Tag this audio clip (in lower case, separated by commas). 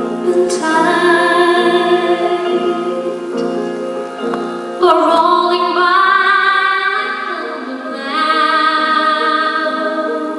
tender music, music